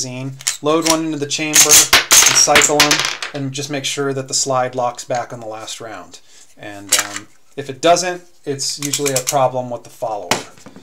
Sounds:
cap gun shooting

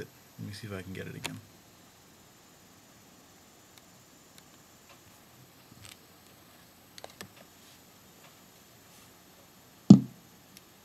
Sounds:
speech

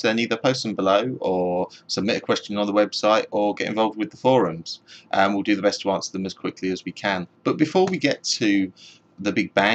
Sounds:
speech

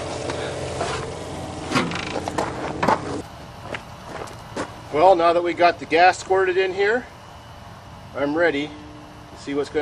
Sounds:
speech
engine
truck
vehicle

